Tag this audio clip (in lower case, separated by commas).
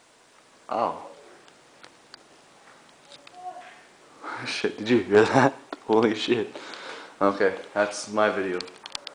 speech